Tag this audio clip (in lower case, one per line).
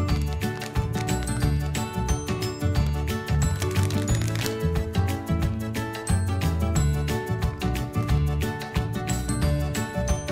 music